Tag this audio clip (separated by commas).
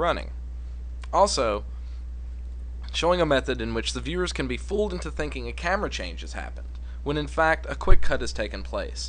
Speech